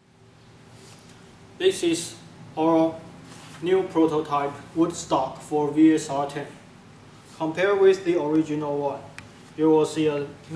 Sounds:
speech

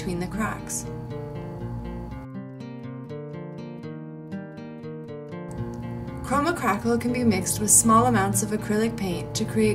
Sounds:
music
speech

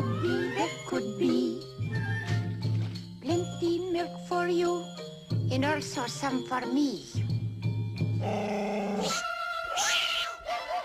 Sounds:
music

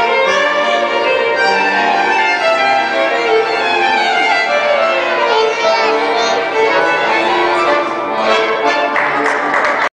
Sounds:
musical instrument
fiddle
music

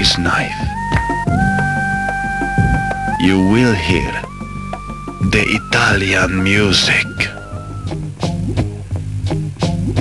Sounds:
music
speech

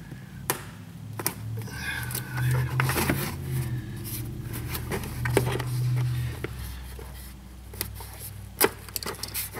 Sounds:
vehicle
engine
car
speech

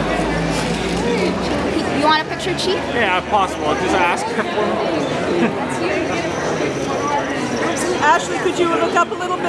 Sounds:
speech

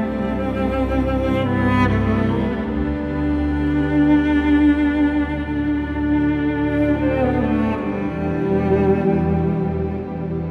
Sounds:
playing cello

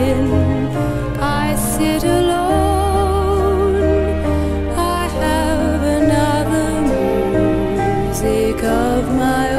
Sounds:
music

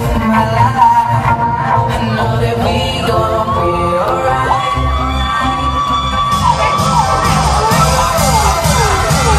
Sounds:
disco
music

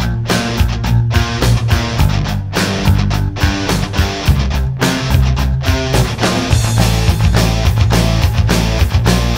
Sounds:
music

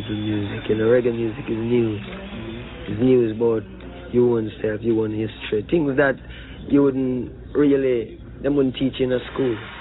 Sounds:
speech

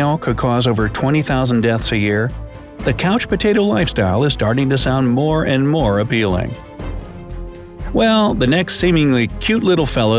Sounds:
mosquito buzzing

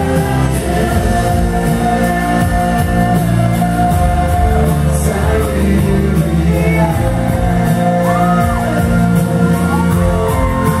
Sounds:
shout
music
singing

